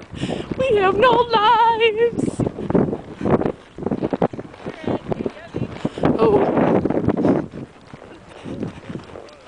Wind blows, a woman speaks